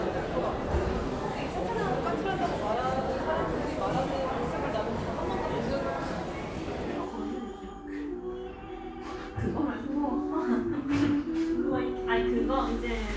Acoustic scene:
crowded indoor space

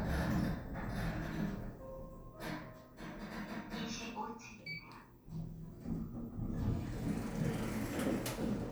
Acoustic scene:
elevator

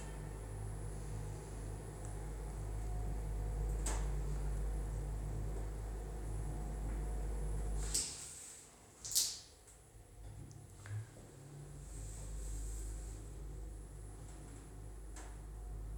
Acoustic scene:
elevator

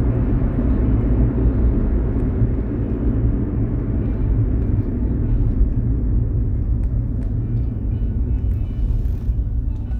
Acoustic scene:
car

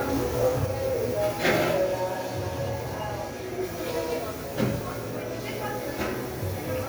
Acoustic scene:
cafe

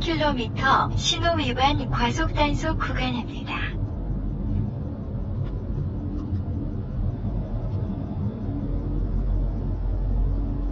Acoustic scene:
car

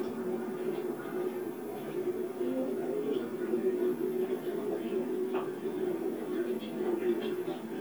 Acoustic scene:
park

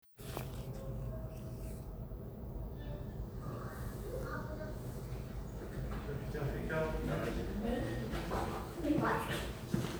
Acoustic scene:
elevator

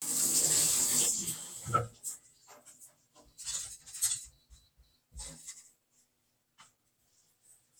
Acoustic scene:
kitchen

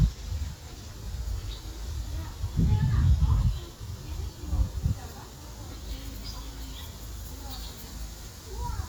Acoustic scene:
park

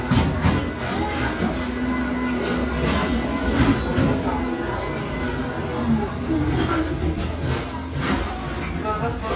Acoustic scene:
cafe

